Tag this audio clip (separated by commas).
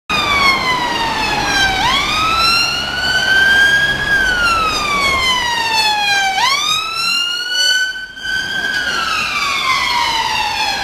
Police car (siren), Siren, Emergency vehicle